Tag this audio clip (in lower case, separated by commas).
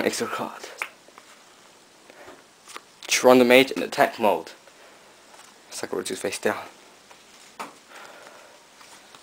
speech, inside a small room